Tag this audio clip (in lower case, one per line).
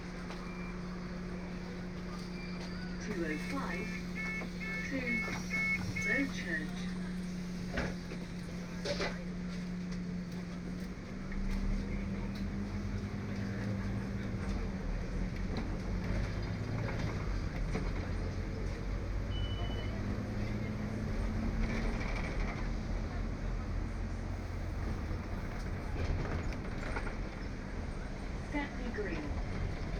vehicle
motor vehicle (road)
bus